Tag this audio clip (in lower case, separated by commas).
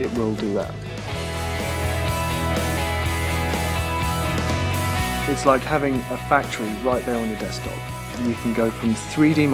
speech, music